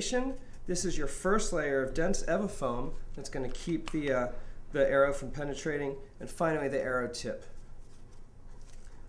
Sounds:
speech

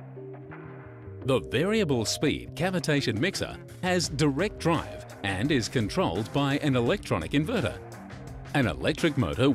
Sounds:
music, speech

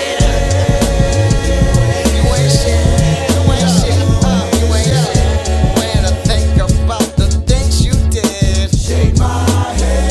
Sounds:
music

